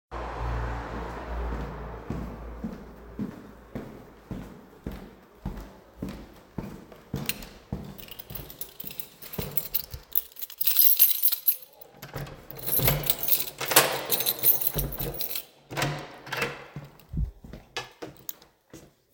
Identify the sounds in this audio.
footsteps, keys, door